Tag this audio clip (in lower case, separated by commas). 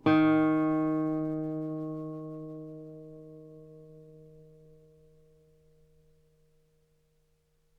musical instrument, guitar, plucked string instrument, music